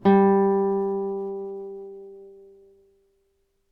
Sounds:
Guitar, Music, Musical instrument, Plucked string instrument

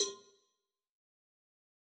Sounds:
Bell, Cowbell

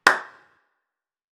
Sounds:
Hands, Clapping

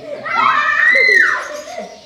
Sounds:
Screaming, Human voice

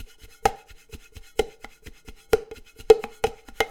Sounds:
home sounds, dishes, pots and pans

